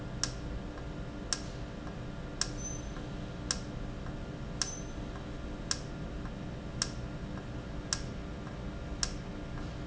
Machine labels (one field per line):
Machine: valve